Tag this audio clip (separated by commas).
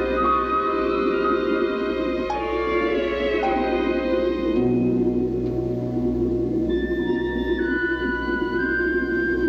Music, Speech